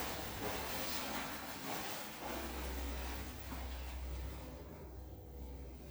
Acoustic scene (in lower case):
elevator